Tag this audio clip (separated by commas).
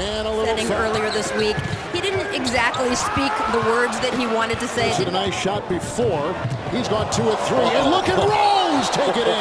Basketball bounce